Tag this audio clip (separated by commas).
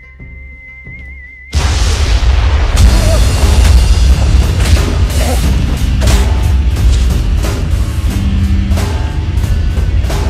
Music